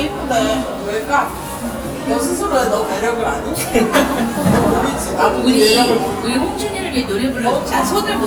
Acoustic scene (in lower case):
cafe